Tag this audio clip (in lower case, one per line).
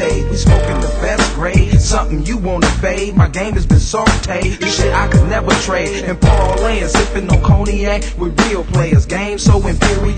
music
blues